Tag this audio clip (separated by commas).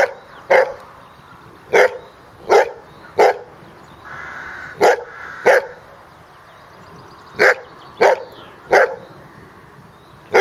livestock